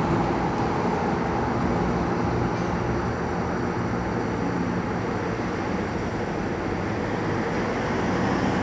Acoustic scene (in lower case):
street